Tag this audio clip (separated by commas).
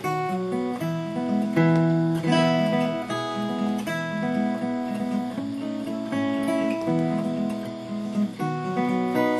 Music